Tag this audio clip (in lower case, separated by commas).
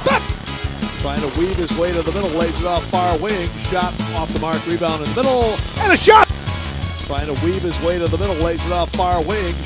speech, music